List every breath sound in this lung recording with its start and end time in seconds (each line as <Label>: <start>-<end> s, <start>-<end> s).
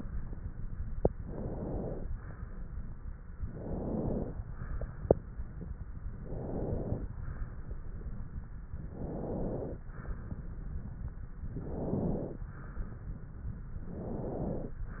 Inhalation: 1.16-2.06 s, 3.40-4.30 s, 6.19-7.09 s, 8.85-9.83 s, 11.47-12.45 s, 13.80-14.78 s